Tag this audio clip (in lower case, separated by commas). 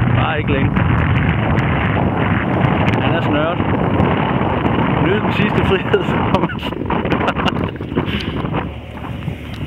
car, vehicle, motor vehicle (road), speech